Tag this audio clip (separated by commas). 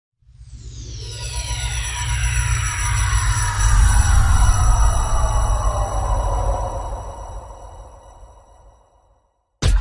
Music